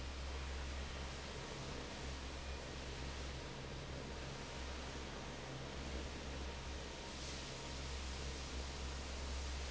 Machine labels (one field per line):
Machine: fan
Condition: normal